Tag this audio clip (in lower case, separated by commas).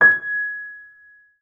keyboard (musical), music, musical instrument, piano